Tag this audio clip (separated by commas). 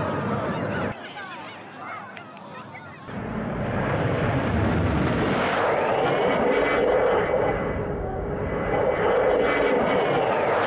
airplane flyby